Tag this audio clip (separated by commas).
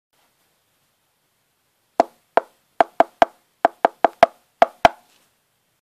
Whack